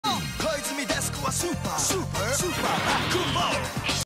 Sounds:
music

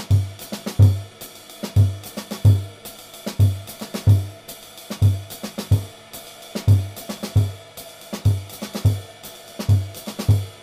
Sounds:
playing bass drum

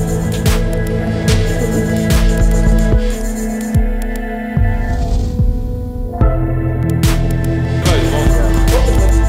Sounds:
music

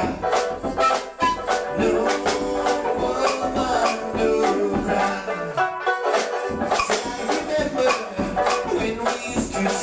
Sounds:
musical instrument, singing, music

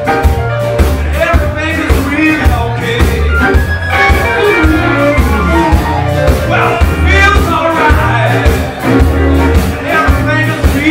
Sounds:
plucked string instrument, electric guitar, musical instrument, music, guitar

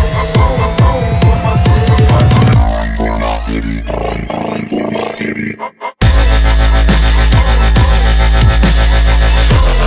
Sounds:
music, dubstep, electronic music

